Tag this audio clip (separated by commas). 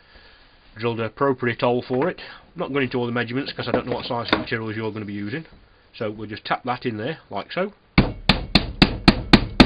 Speech